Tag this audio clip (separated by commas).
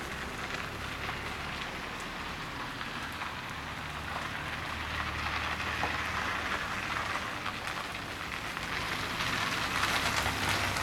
Car, Vehicle